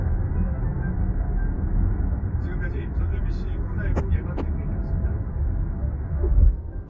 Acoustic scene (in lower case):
car